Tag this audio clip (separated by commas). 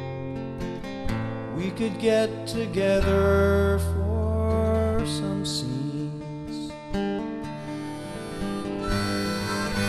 Harmonica, woodwind instrument